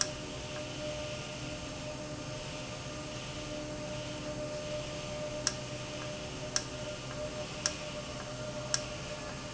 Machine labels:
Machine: valve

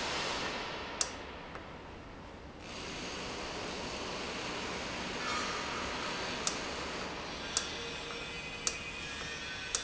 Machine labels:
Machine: valve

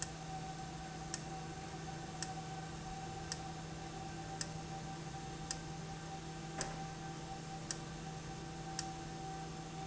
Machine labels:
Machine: valve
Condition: abnormal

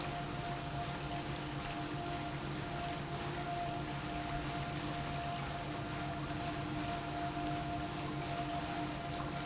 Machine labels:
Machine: pump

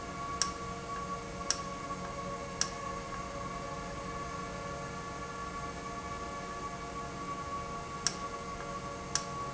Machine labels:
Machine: valve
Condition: normal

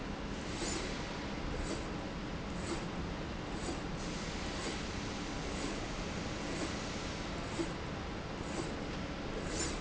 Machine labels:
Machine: slide rail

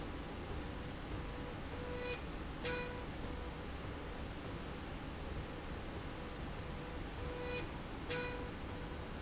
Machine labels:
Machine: slide rail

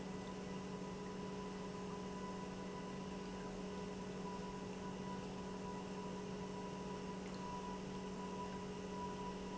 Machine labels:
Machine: pump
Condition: normal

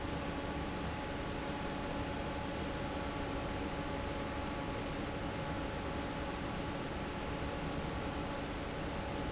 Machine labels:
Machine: fan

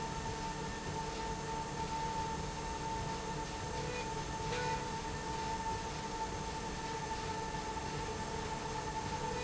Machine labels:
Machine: slide rail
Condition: normal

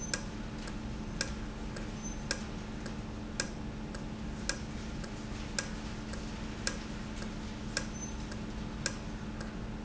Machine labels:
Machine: valve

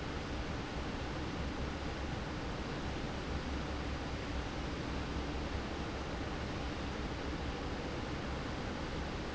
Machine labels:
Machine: fan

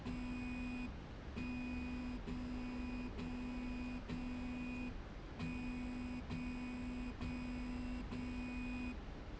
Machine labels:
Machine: slide rail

